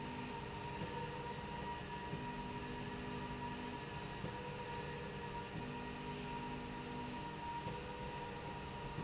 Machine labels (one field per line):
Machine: slide rail